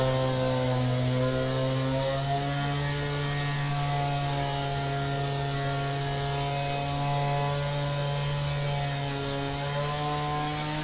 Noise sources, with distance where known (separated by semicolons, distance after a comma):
chainsaw, near